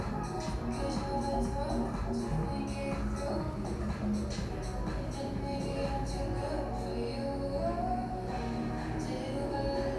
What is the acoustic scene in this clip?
cafe